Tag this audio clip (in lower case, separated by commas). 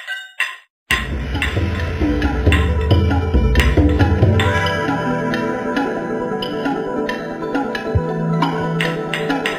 music, inside a large room or hall